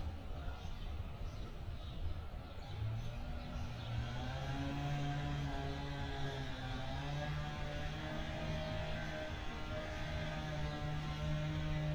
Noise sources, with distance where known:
unidentified powered saw, near

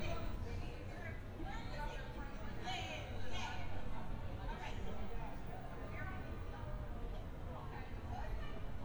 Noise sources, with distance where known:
person or small group talking, near

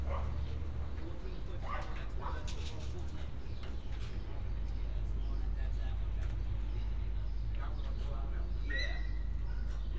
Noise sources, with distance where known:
unidentified human voice
dog barking or whining, far

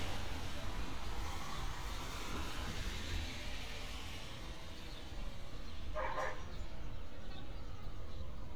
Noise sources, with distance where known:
dog barking or whining, far

